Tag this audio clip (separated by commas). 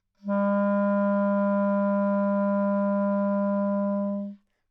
Wind instrument, Music, Musical instrument